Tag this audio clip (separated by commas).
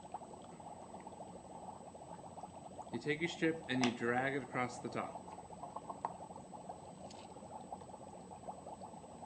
Speech, Gurgling